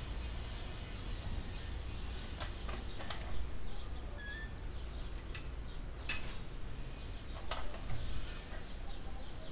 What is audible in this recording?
unidentified impact machinery